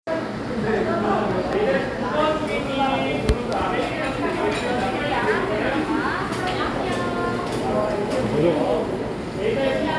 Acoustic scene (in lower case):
cafe